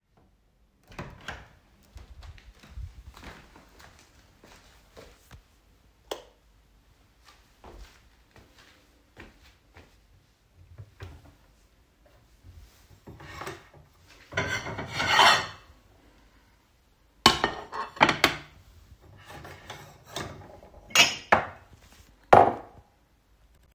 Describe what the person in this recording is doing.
I opened the door, walked into the room and turned on the light. Then I walked to the cupboard and opened it, and took out some plates and mugs.